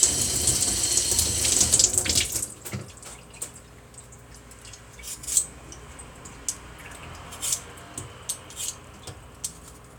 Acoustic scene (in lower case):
kitchen